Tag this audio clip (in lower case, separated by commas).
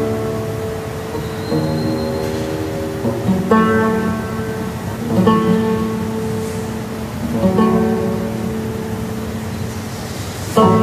double bass, bowed string instrument, cello